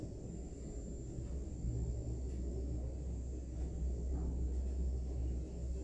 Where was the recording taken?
in an elevator